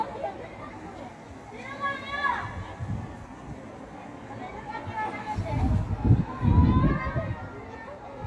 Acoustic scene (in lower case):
residential area